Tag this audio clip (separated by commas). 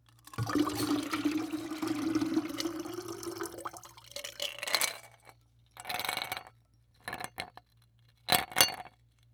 Liquid